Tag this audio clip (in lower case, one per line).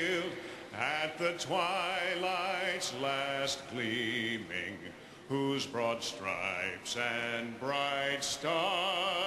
male singing